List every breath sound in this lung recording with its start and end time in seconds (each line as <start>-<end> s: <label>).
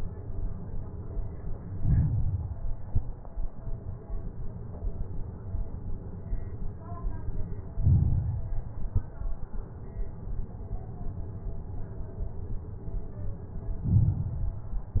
1.75-2.54 s: inhalation
1.75-2.54 s: crackles
2.85-3.17 s: exhalation
2.85-3.17 s: crackles
7.79-8.66 s: inhalation
7.79-8.66 s: crackles
8.82-9.14 s: exhalation
8.82-9.14 s: crackles
13.85-14.72 s: inhalation
13.85-14.72 s: crackles
14.80-15.00 s: exhalation
14.80-15.00 s: crackles